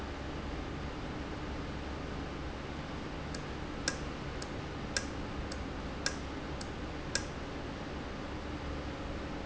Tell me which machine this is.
valve